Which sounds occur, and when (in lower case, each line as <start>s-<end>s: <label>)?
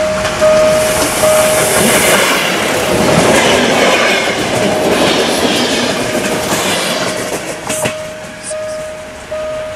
0.0s-0.9s: alarm
0.0s-7.9s: clickety-clack
0.0s-9.7s: train
1.1s-1.7s: alarm
6.9s-7.6s: alarm
7.7s-8.3s: alarm
8.4s-8.6s: surface contact
8.4s-9.1s: alarm
8.7s-8.8s: surface contact
9.2s-9.7s: alarm